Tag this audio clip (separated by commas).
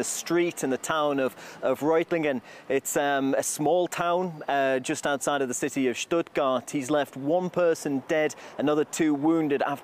Speech